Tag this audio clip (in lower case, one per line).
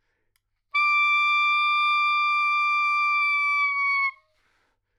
music
wind instrument
musical instrument